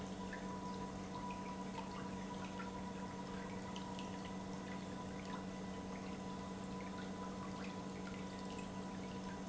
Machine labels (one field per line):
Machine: pump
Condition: normal